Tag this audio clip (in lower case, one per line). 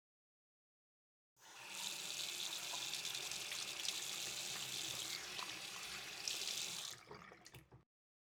domestic sounds
sink (filling or washing)